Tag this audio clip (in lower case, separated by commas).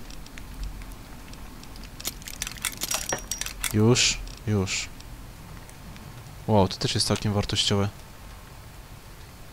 speech